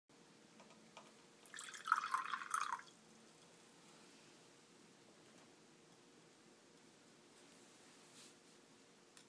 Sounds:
water

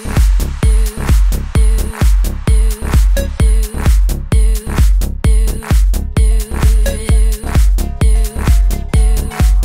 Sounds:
music, dance music

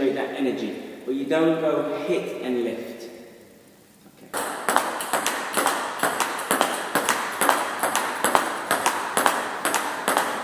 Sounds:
playing table tennis

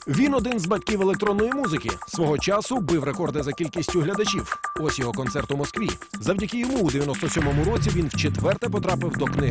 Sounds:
electronic music, music, speech

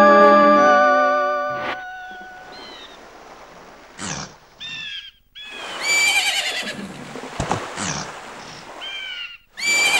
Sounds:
outside, rural or natural, music

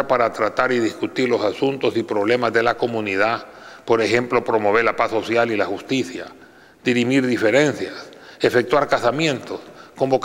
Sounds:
speech

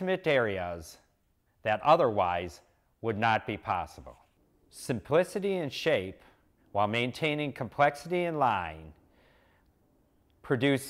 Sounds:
speech

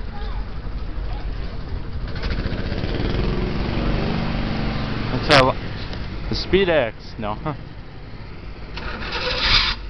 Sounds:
speech

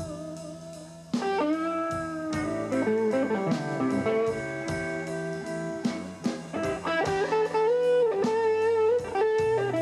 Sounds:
blues, guitar, music, plucked string instrument, musical instrument, country

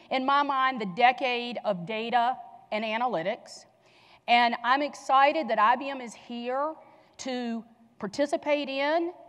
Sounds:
speech

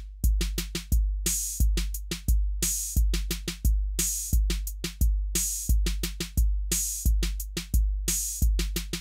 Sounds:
drum machine, music

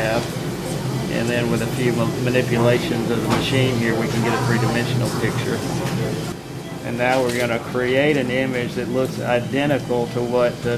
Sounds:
speech

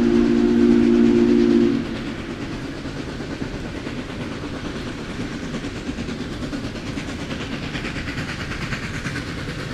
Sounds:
train whistling

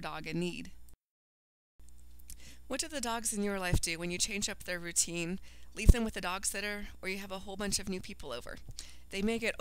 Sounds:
speech

